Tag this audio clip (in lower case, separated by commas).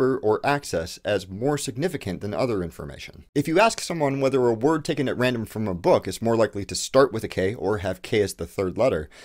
speech